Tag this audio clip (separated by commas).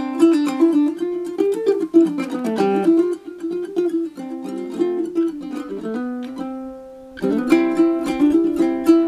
Music, Ukulele